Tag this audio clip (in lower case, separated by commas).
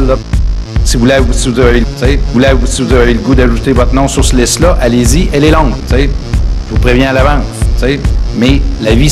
music, electronic music, techno, speech